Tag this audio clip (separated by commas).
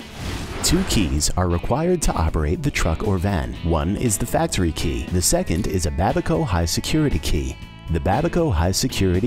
Music, Speech